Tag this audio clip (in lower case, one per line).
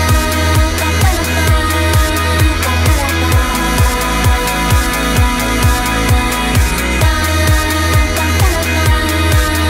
music